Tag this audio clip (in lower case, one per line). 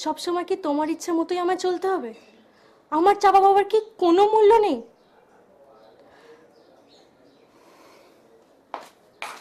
inside a small room
speech